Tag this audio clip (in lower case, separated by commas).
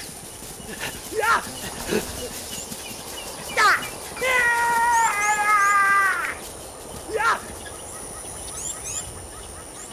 speech, outside, rural or natural, animal